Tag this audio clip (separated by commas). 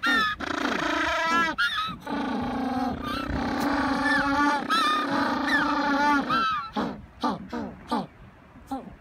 penguins braying